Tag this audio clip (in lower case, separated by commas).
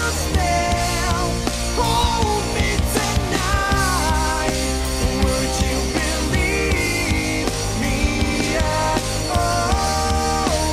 snare drum, playing drum kit, bass drum, drum kit, percussion, drum, rimshot